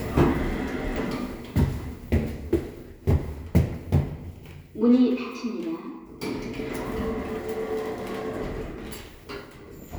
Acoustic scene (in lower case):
elevator